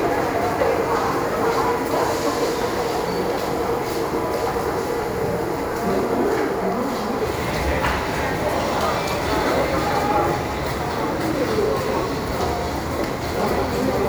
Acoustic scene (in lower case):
subway station